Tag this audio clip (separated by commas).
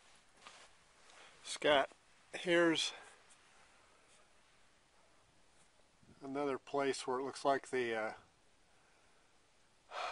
Speech